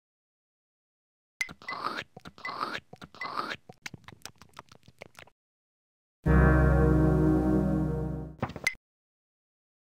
Slurping and lip smacking followed by the ring of a bell